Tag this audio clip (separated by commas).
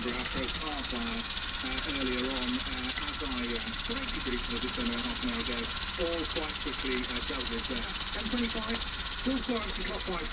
Speech